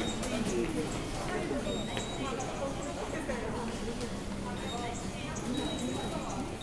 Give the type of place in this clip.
subway station